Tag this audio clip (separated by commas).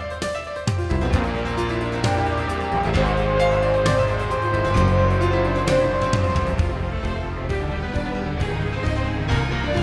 Theme music, Music